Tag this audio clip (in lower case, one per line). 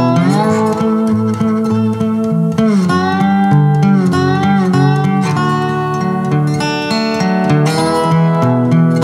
guitar
plucked string instrument
music